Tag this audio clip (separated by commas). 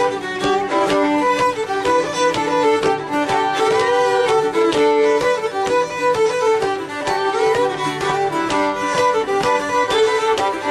fiddle, Musical instrument, Music